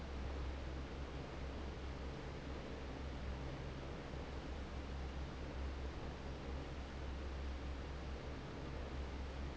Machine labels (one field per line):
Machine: fan